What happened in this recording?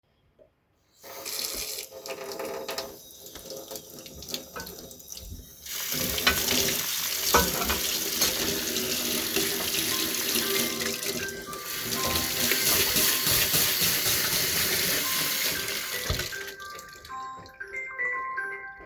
I was washing utensils meanwhile received a phone call.